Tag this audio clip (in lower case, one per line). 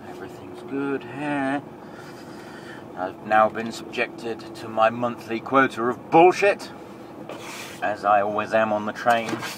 truck
vehicle
speech